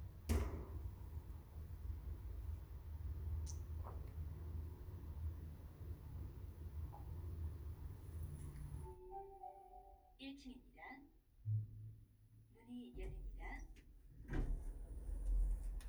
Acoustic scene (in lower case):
elevator